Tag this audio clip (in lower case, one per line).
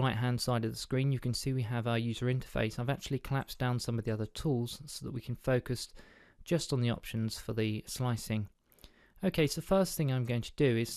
speech